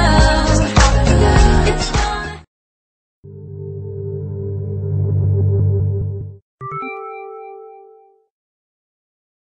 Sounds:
Music

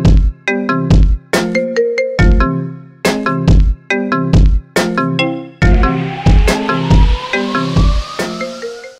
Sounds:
xylophone, Mallet percussion, Glockenspiel

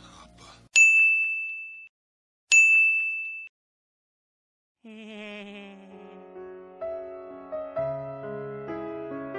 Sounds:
Music

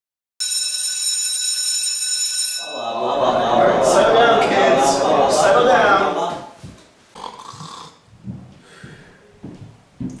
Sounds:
inside a large room or hall, Speech

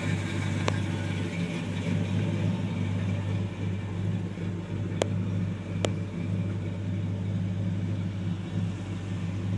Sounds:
Vehicle

